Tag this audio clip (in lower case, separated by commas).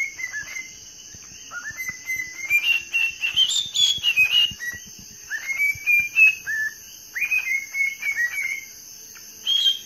bird chirping